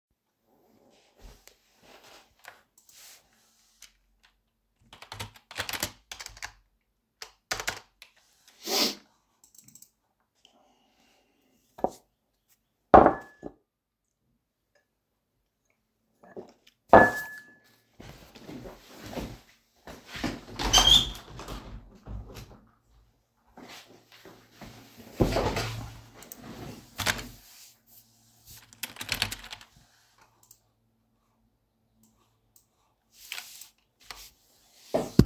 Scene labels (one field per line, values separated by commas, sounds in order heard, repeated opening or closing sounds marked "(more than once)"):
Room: office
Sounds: keyboard typing, cutlery and dishes, window